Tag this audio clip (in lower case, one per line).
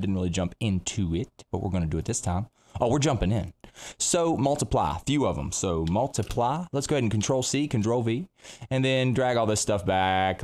speech